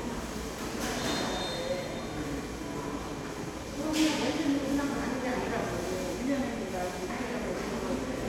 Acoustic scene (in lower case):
subway station